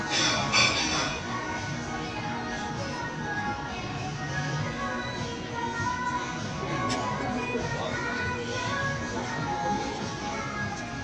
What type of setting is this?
crowded indoor space